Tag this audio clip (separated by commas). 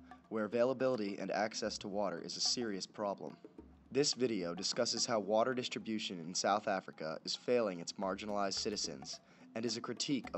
Music, Speech